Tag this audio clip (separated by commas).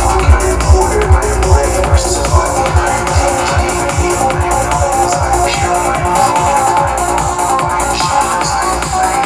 Music